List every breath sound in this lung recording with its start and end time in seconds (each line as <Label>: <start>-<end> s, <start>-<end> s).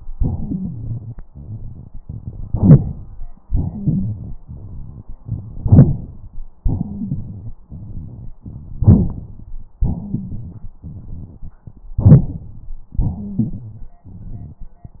Inhalation: 2.50-3.27 s, 5.60-6.45 s, 8.79-9.47 s, 11.97-12.71 s
Exhalation: 3.47-5.11 s, 6.64-8.37 s, 9.85-11.59 s, 13.02-14.57 s
Wheeze: 0.38-1.15 s, 2.58-2.78 s, 3.71-4.09 s, 6.83-7.15 s, 9.98-10.31 s, 13.14-13.36 s
Rhonchi: 13.36-13.81 s